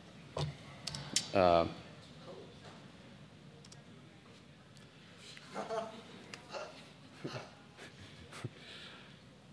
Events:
[0.00, 9.52] mechanisms
[0.33, 0.53] generic impact sounds
[0.58, 1.19] speech
[0.80, 1.00] clicking
[1.09, 1.23] tick
[1.30, 1.68] male speech
[1.85, 2.49] speech
[2.56, 2.77] generic impact sounds
[3.50, 5.46] speech
[3.58, 3.73] clicking
[4.20, 4.42] generic impact sounds
[4.68, 4.84] generic impact sounds
[5.27, 5.45] tick
[5.49, 6.71] laughter
[6.24, 6.36] tick
[7.15, 8.52] laughter
[8.54, 9.12] breathing

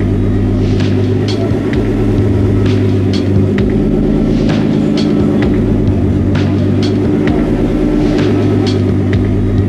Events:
[0.00, 9.65] medium engine (mid frequency)
[0.00, 9.65] music

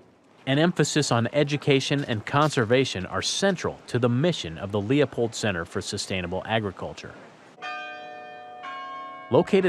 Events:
[0.00, 9.65] wind
[0.38, 3.74] man speaking
[3.88, 7.22] man speaking
[7.57, 9.65] bell
[9.27, 9.65] man speaking

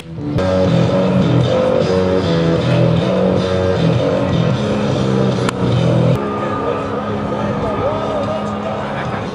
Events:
[0.00, 9.34] music
[5.34, 5.54] generic impact sounds
[7.74, 8.48] human sounds

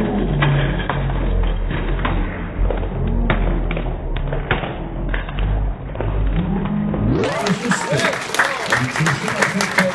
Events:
[0.00, 7.17] sound effect
[0.00, 9.94] crowd
[0.36, 0.98] clapping
[1.35, 2.23] clapping
[2.62, 3.50] clapping
[3.66, 4.73] clapping
[5.06, 5.55] clapping
[5.94, 6.99] clapping
[7.18, 8.19] male speech
[7.19, 9.94] applause
[7.82, 8.66] shout
[8.68, 9.94] male speech

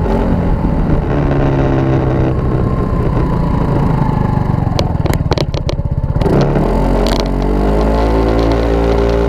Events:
[0.00, 9.25] medium engine (mid frequency)
[0.00, 9.25] wind noise (microphone)
[6.14, 9.25] revving
[7.94, 9.25] generic impact sounds

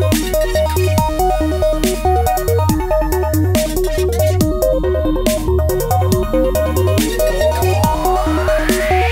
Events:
[0.00, 9.11] music
[7.58, 9.11] sound effect

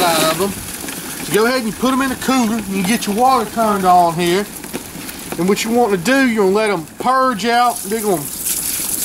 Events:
[0.00, 0.50] man speaking
[0.14, 0.43] generic impact sounds
[0.32, 9.04] rattle
[0.81, 1.02] generic impact sounds
[1.25, 4.44] man speaking
[2.50, 2.63] generic impact sounds
[2.77, 2.91] generic impact sounds
[4.59, 4.79] generic impact sounds
[5.24, 5.38] generic impact sounds
[5.35, 6.83] man speaking
[6.91, 7.08] generic impact sounds
[6.95, 8.24] man speaking
[8.19, 9.04] water

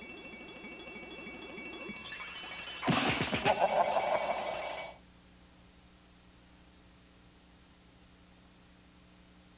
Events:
[0.00, 4.99] music
[0.00, 9.55] mechanisms
[2.81, 3.53] thwack
[3.40, 4.45] laughter

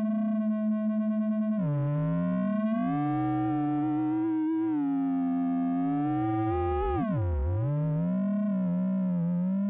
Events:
[0.00, 9.65] chirp tone

